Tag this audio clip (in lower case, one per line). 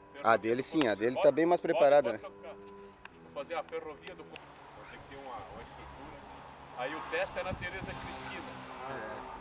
speech